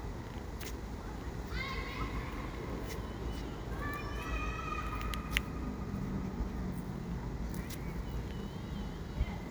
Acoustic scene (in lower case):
residential area